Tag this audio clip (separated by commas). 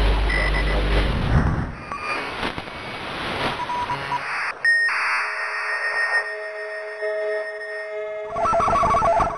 Speech, Music